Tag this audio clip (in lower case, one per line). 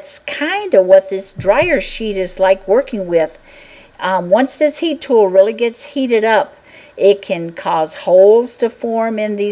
monologue